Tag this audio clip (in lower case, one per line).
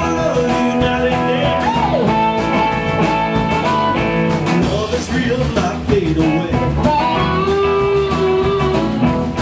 music